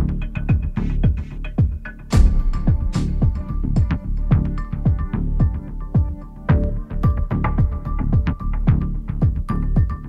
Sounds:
music
rhythm and blues

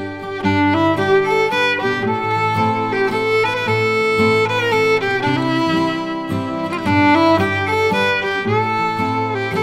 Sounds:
musical instrument
fiddle
music

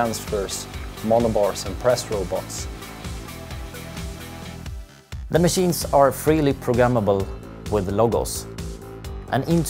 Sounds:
music
speech

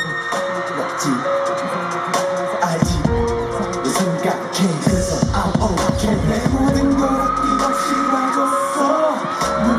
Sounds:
soundtrack music
music

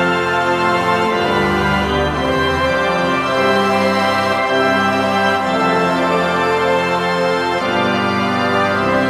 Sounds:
playing electronic organ

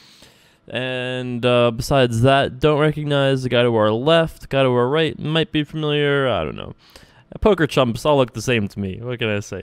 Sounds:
speech

